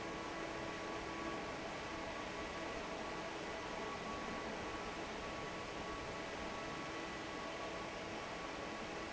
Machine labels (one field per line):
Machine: fan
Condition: normal